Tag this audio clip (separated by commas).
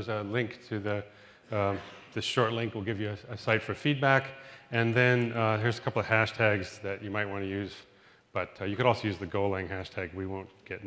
Speech